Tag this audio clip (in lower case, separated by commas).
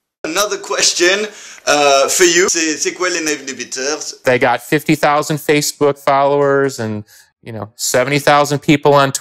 speech